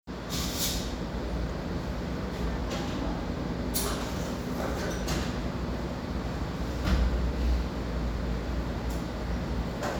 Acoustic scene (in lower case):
cafe